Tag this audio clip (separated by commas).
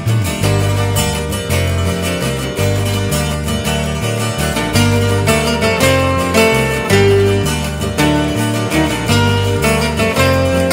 Music